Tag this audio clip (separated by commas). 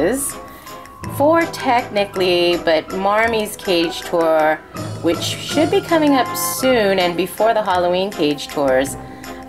Speech, Music